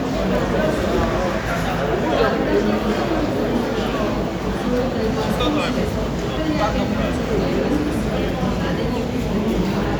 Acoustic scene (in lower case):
crowded indoor space